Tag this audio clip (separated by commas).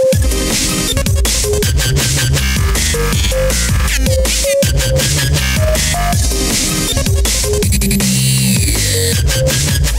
Dubstep, Music